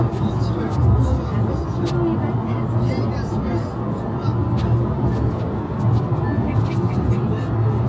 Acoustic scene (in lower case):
car